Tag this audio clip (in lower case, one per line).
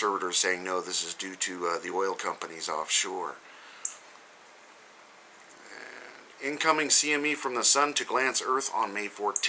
speech